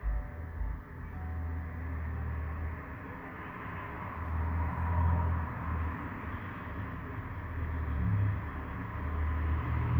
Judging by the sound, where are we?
on a street